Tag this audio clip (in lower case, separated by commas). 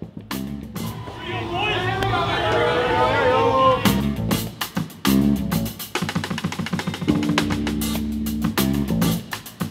speech, music, inside a large room or hall